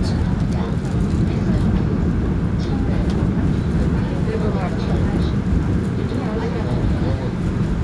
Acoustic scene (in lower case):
subway train